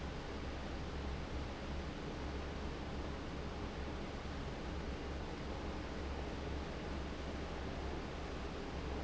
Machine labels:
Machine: fan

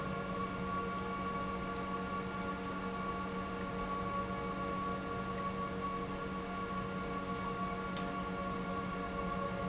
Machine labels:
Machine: pump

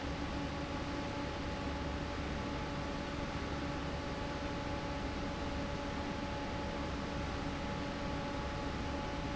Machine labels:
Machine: fan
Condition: normal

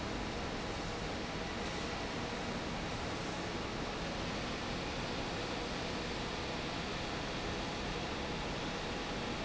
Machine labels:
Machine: fan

